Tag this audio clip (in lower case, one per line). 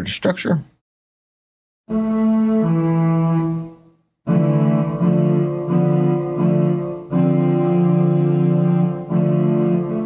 speech
music